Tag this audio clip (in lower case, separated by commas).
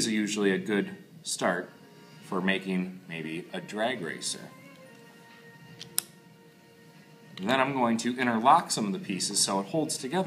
music, speech